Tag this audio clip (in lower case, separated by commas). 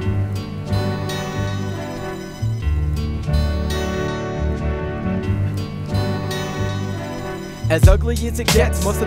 music